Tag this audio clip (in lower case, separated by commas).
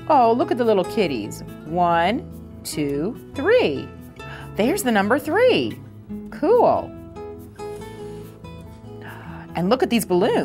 music, speech